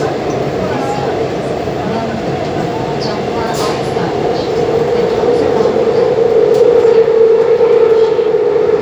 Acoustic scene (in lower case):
subway train